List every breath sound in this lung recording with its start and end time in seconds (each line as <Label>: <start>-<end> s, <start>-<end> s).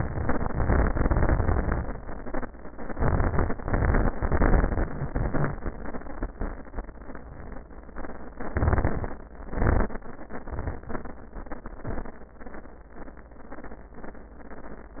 Inhalation: 8.37-9.14 s
Exhalation: 9.49-9.96 s